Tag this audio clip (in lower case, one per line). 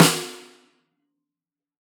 drum
musical instrument
percussion
music
snare drum